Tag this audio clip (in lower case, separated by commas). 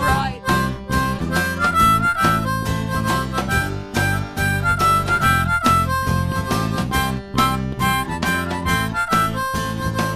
harmonica, wind instrument